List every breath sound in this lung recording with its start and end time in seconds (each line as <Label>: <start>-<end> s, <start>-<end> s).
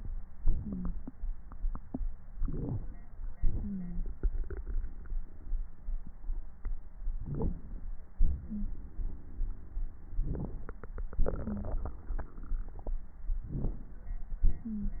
Inhalation: 2.36-3.09 s, 7.19-7.89 s, 10.13-10.83 s, 13.45-14.15 s
Wheeze: 0.62-0.94 s, 3.60-4.02 s, 8.48-8.66 s, 11.44-11.67 s
Crackles: 7.19-7.89 s, 10.13-10.83 s, 13.45-14.15 s